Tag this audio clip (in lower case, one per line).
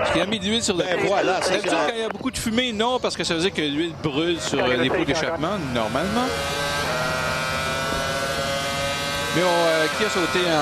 vehicle
car
speech
engine